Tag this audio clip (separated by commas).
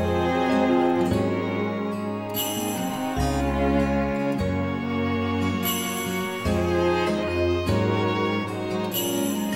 Music, Theme music